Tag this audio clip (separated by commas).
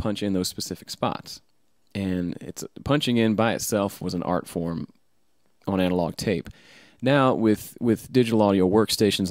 Speech